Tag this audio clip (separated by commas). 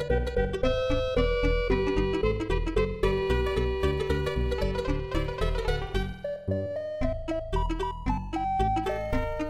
Music, Soundtrack music